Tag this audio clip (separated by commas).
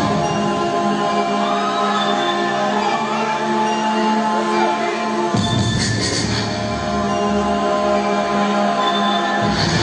Music, Electronic music